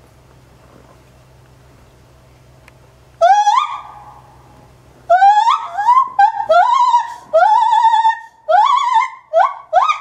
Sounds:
gibbon howling

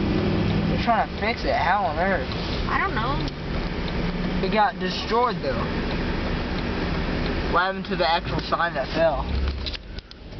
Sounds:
car passing by, speech, car, vehicle

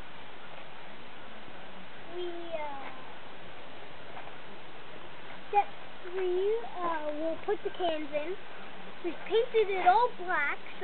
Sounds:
speech

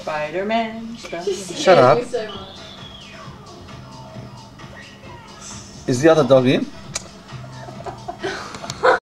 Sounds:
speech, music

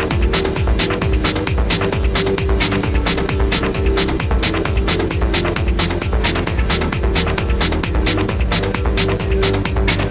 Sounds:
music

